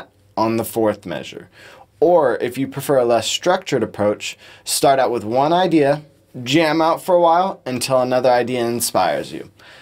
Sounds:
speech

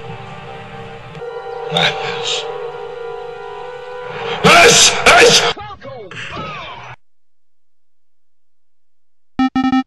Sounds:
speech
music

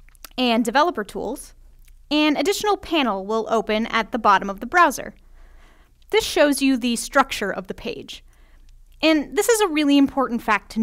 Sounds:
speech

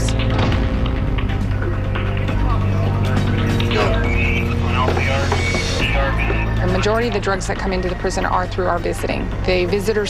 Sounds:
speech
music

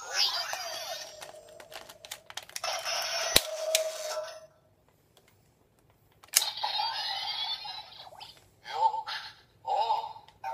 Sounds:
inside a small room
speech

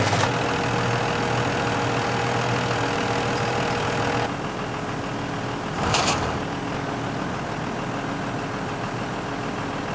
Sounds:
tractor digging

